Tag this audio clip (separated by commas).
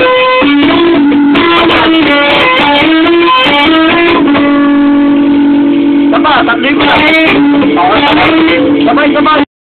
Speech, Musical instrument, Acoustic guitar, Music, Strum, Electric guitar, Guitar, Plucked string instrument